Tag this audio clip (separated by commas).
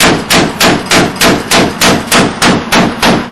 gunfire, Explosion